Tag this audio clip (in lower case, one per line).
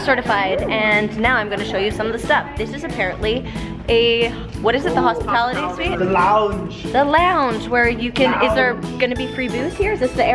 music
speech